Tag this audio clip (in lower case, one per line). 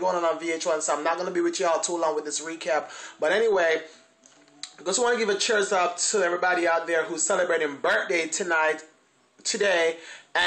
speech